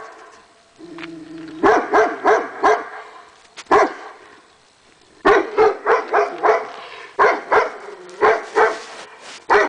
A dog is barking loudly and growling